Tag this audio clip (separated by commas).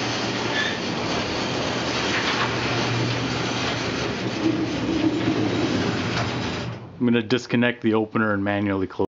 Speech